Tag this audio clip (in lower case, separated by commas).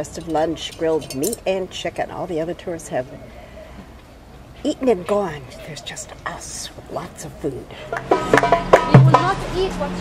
inside a small room, speech